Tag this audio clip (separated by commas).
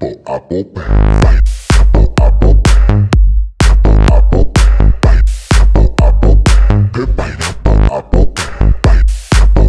Music